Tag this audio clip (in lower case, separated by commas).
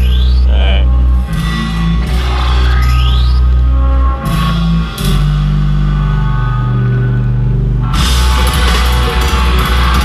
music